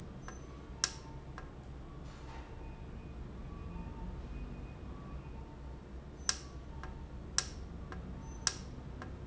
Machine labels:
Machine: valve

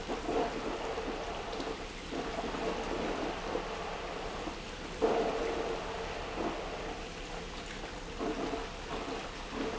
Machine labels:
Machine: pump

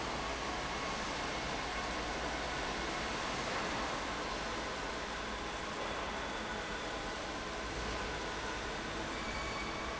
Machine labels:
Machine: fan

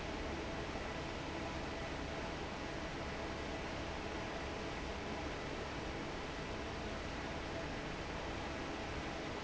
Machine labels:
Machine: fan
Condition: normal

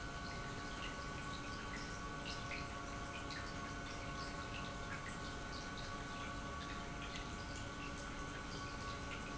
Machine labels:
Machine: pump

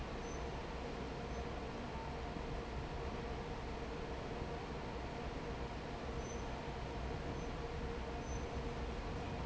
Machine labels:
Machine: fan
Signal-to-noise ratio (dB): 0 dB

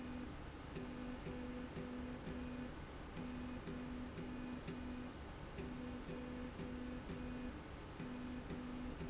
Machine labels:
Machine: slide rail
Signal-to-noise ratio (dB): 6 dB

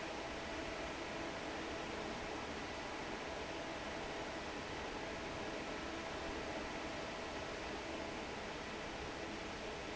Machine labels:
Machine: fan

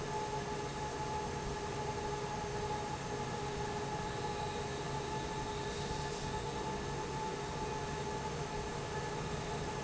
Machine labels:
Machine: fan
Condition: normal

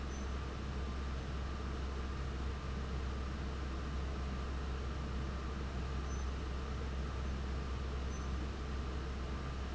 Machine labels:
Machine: fan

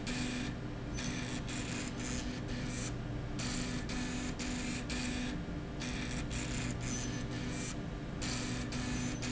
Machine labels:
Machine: slide rail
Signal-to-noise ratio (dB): -6 dB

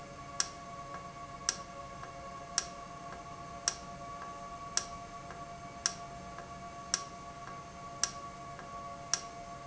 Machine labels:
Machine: valve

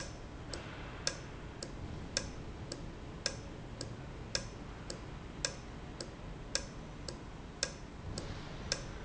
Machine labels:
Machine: valve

